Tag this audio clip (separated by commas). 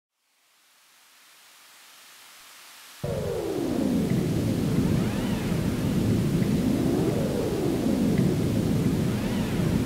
Pink noise